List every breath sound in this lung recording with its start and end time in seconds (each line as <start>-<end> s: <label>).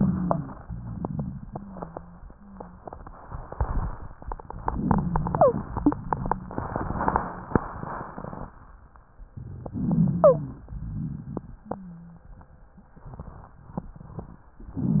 0.63-1.43 s: exhalation
0.63-1.43 s: rhonchi
1.39-2.18 s: wheeze
2.31-2.87 s: wheeze
4.65-5.62 s: inhalation
4.65-5.62 s: rhonchi
5.29-5.58 s: wheeze
5.73-6.02 s: wheeze
9.68-10.68 s: inhalation
9.70-10.57 s: rhonchi
10.17-10.47 s: wheeze
10.68-11.69 s: exhalation
10.68-11.69 s: rhonchi